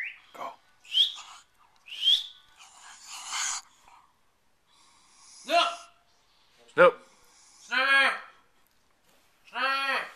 A man speaks, a bird whistles multiple times, and other men talk and yell